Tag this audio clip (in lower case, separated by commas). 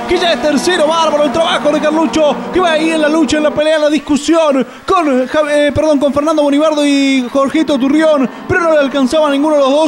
vehicle, speech